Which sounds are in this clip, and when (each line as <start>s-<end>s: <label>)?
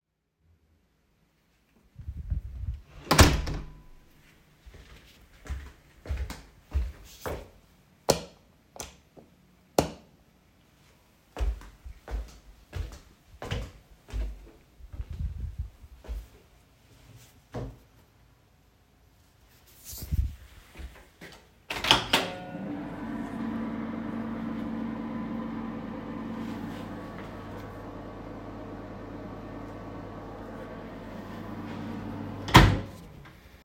2.4s-4.0s: door
5.3s-7.7s: footsteps
8.1s-10.1s: light switch
11.5s-18.1s: footsteps
21.6s-33.1s: microwave